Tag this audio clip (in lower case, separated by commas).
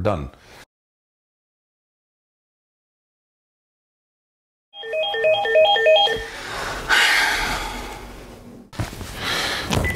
speech, inside a small room